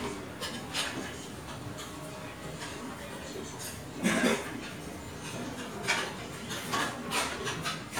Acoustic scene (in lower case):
restaurant